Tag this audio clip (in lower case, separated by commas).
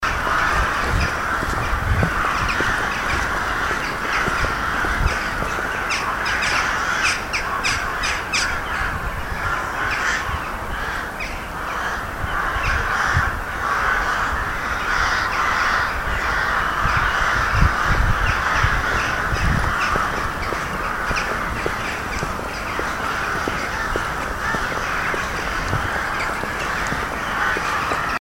wild animals, animal, crow, bird